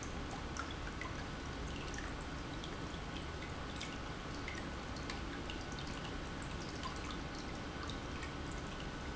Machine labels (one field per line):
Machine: pump